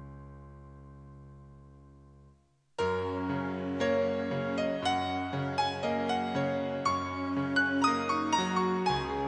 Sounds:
music, tender music

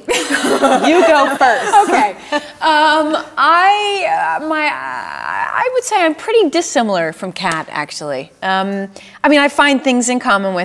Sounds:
speech

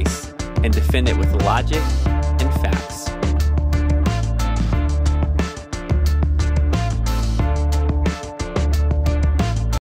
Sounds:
music, speech

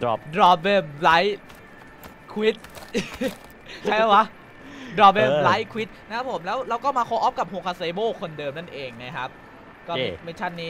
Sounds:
speech

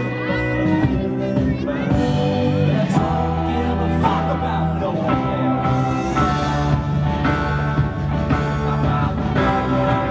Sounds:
rock and roll, singing, music

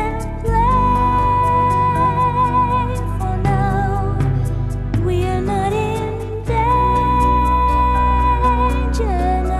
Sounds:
tender music, music

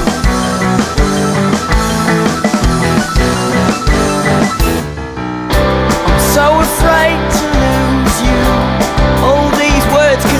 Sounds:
music

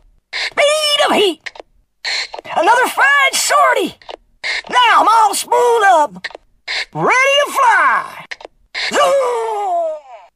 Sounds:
speech

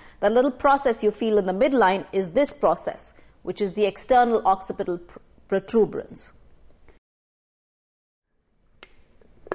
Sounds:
inside a small room, speech

